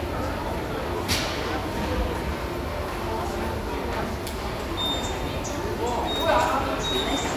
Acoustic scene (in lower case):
subway station